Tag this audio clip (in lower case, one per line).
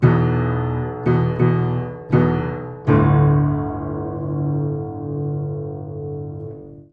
music
piano
keyboard (musical)
musical instrument